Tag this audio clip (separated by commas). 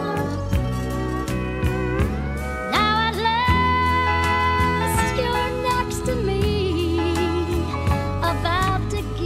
Country, Music